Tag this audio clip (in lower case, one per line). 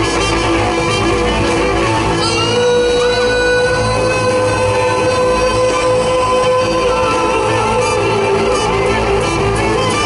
rock and roll
music